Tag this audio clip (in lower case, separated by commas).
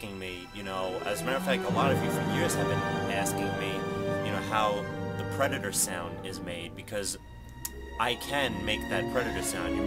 speech, music